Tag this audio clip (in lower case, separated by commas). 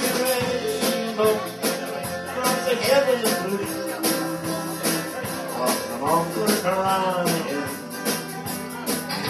speech, music